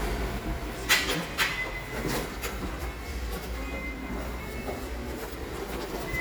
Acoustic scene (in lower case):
subway station